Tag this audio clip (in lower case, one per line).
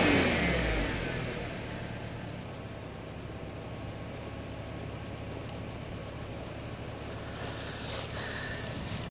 accelerating
vehicle
car